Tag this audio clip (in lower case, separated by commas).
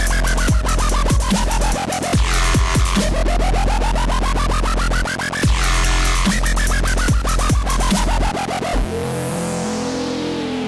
electronic music, music, dubstep